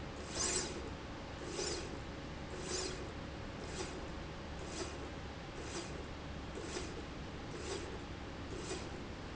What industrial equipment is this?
slide rail